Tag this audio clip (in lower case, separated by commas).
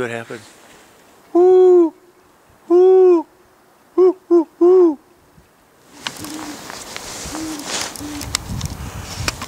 owl hooting